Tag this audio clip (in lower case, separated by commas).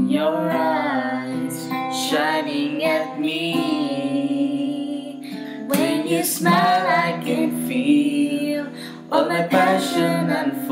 female singing, music, male singing